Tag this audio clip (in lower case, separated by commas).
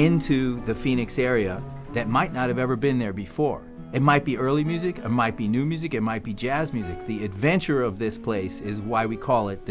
speech, music